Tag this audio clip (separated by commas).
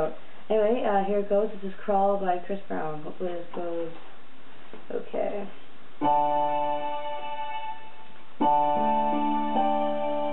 Music, Speech